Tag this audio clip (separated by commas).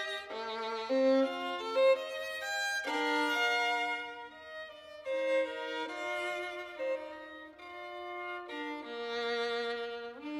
Musical instrument, Violin, Music